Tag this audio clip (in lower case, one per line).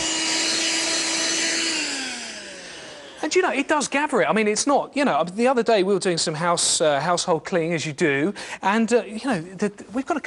speech
vacuum cleaner